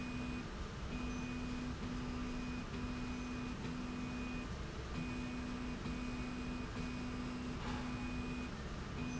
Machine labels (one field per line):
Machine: slide rail